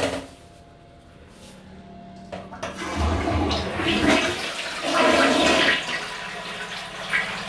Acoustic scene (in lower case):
restroom